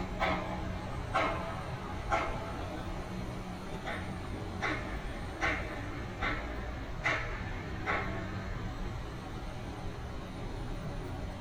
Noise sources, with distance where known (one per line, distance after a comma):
pile driver, near